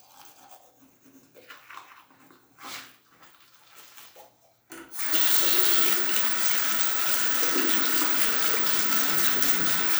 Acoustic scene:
restroom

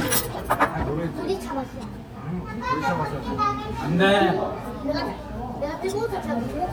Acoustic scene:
restaurant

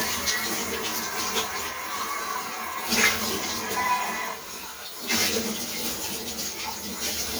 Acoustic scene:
kitchen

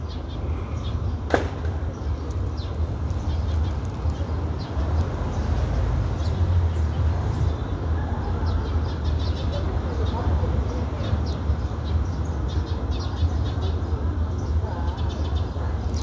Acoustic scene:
residential area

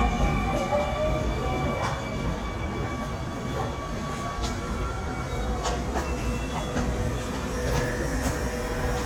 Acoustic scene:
subway station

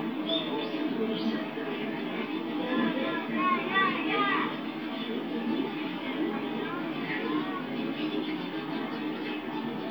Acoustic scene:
park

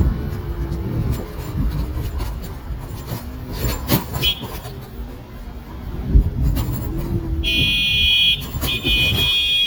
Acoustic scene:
street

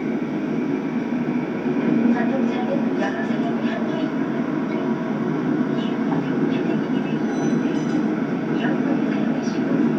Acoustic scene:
subway train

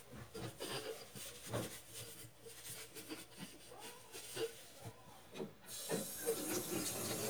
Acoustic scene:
kitchen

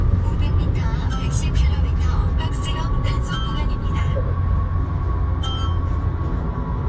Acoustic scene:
car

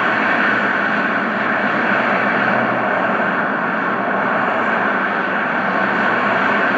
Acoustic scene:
street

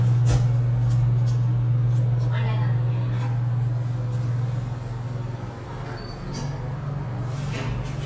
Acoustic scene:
elevator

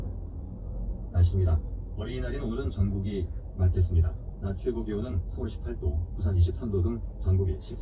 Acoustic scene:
car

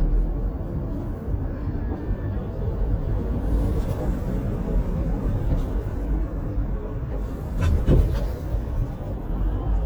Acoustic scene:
car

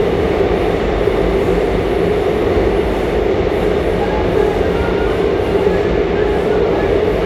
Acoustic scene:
subway train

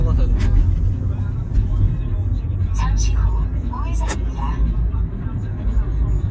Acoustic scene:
car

